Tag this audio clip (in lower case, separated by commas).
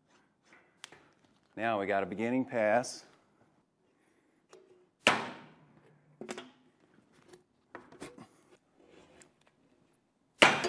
speech